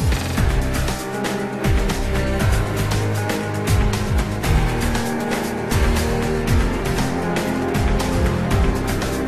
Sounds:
Music

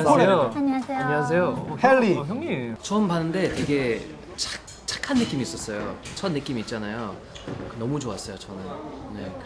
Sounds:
Speech

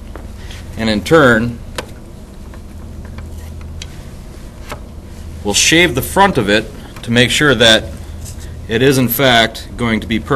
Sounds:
Speech

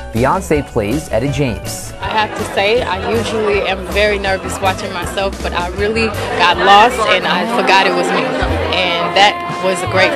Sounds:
Speech, Music

